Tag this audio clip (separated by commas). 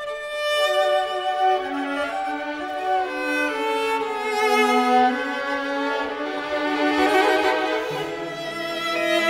Musical instrument, fiddle, Music